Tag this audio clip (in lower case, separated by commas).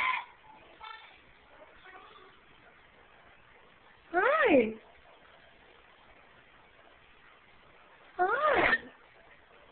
speech